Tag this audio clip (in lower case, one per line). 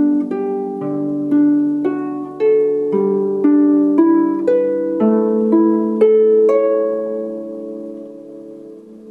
playing harp